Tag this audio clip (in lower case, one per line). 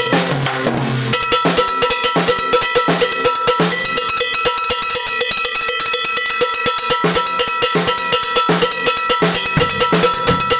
rimshot
snare drum
drum
drum kit
percussion
bass drum